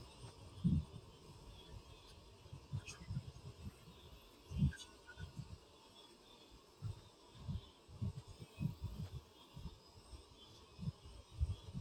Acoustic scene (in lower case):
park